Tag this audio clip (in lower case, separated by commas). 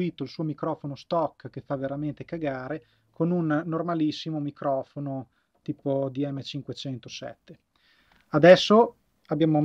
speech